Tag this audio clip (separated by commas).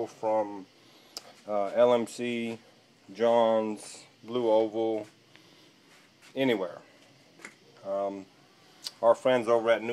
Speech